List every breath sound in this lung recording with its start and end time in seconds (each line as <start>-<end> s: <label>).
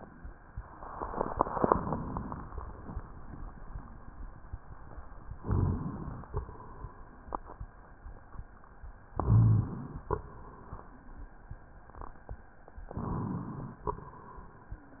5.38-5.88 s: rhonchi
5.40-6.29 s: inhalation
6.29-7.69 s: exhalation
9.10-10.08 s: inhalation
9.22-9.72 s: rhonchi
10.08-11.41 s: exhalation
12.93-13.90 s: inhalation
13.90-15.00 s: exhalation